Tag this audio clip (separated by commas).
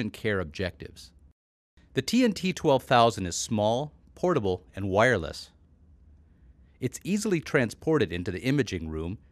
Speech